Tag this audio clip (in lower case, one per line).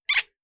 squeak